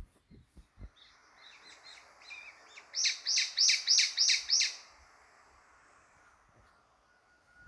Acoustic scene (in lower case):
park